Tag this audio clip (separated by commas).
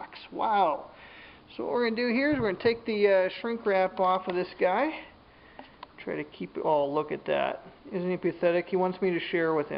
Speech